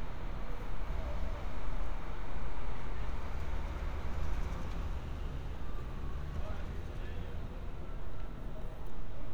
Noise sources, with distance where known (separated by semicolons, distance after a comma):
medium-sounding engine